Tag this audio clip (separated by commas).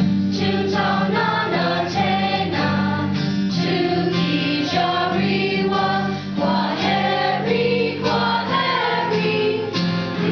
Choir, Music